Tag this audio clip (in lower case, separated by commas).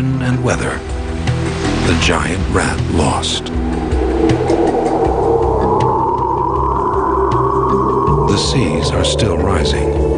speech, music